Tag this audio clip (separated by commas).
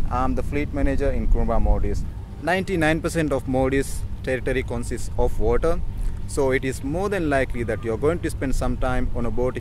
Speech